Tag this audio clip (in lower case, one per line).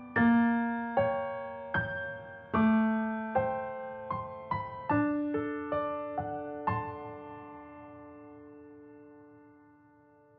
music
lullaby